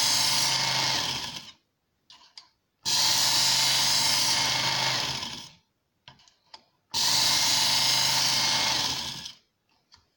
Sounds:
electric grinder grinding

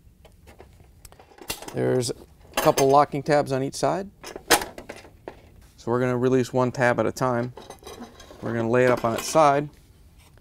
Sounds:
inside a small room, Speech

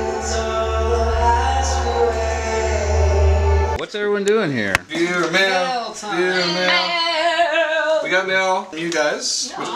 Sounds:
Music, Speech

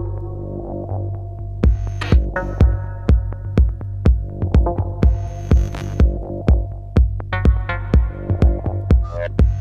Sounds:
Music

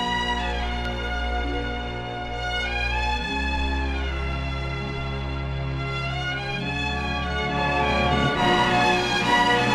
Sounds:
Music

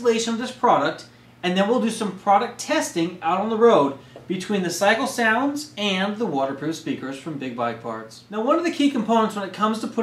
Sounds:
Speech

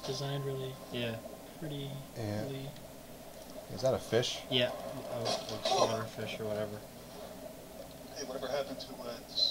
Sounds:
Speech

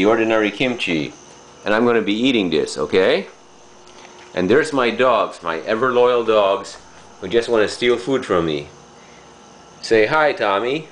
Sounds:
Speech

